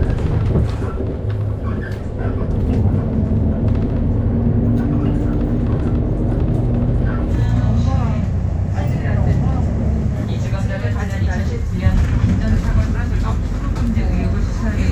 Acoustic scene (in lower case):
bus